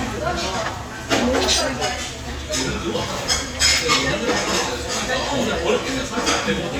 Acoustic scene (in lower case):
crowded indoor space